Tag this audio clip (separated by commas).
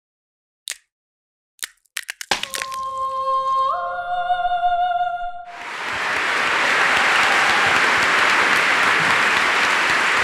inside a large room or hall